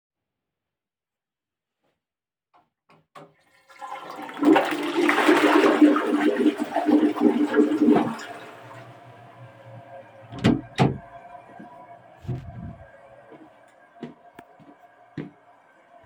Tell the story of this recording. I flushed the toiled, opened the door and went to wash my hands.